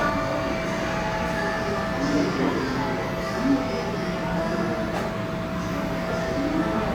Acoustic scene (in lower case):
cafe